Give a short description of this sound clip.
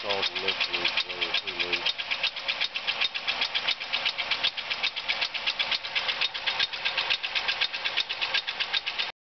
Something is vibrating, then man is speaking